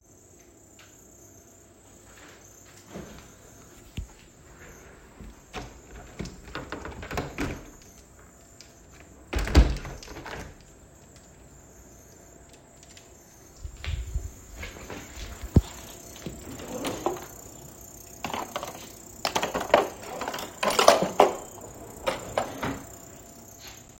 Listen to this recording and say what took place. I walk to the kitchen window, open it, close it and open again. I walk to the kitchen counter, open a drawer, search through things inside and then close the drawer.